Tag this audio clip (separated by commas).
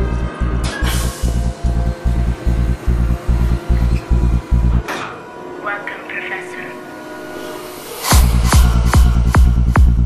Music, woman speaking